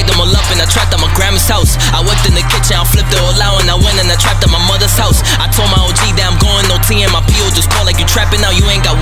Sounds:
music
house music

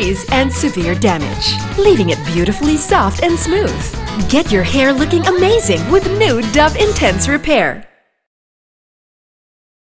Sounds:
music
speech

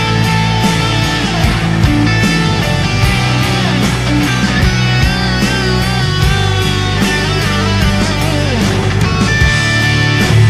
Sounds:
guitar
music
musical instrument
plucked string instrument
bass guitar

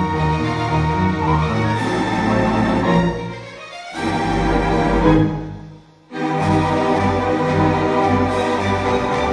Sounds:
independent music
music

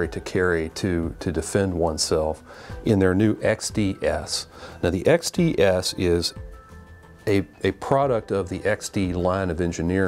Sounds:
speech
music

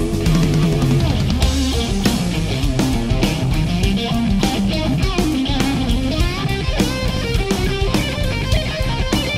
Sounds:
heavy metal
music

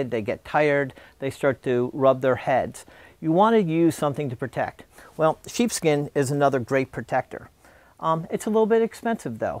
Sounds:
speech

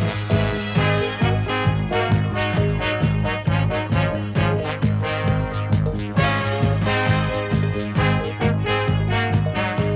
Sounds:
music

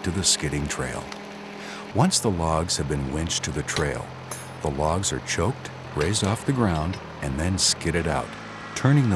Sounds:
speech
vehicle

